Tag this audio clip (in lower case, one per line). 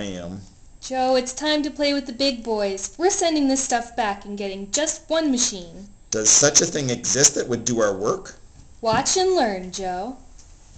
speech